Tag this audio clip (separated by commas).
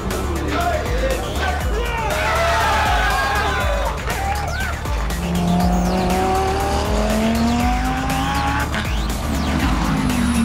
Vehicle, Car, Music, auto racing